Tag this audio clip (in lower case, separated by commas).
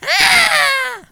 screaming, human voice